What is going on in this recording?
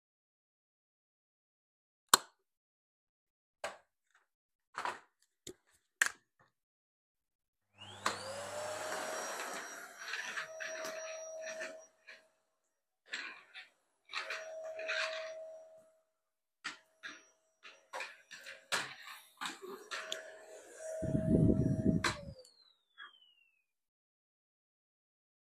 I entered the bedroom, turned the lights on and started vacuuming.